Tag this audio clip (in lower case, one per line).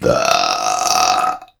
burping